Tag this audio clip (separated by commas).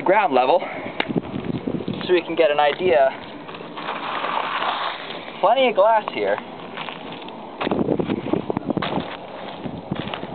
Speech